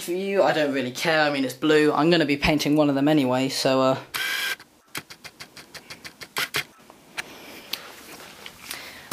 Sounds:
speech
inside a small room

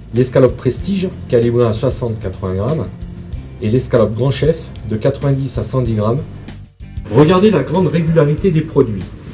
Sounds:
music
speech

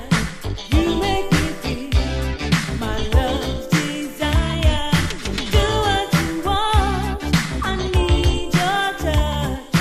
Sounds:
funk
music

